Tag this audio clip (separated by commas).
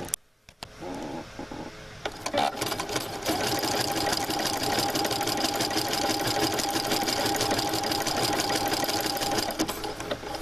using sewing machines, inside a small room, Sewing machine